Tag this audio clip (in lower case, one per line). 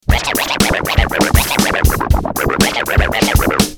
musical instrument
music
scratching (performance technique)